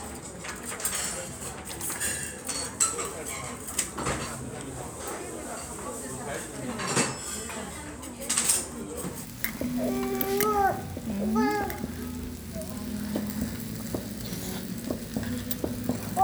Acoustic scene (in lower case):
restaurant